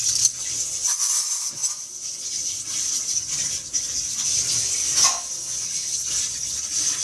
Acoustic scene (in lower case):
kitchen